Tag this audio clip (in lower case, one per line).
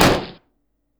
explosion